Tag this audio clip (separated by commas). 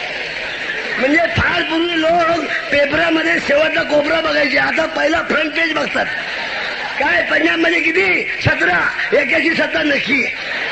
Speech, Male speech, monologue